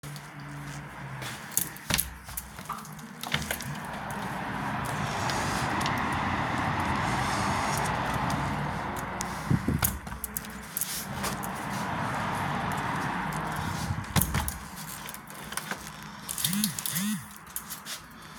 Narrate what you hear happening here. walk toward the window, open and close the window